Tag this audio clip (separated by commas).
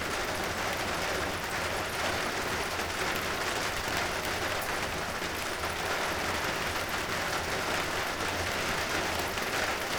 Rain, Water